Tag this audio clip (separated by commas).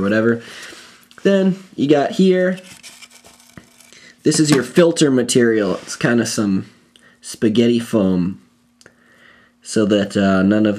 Speech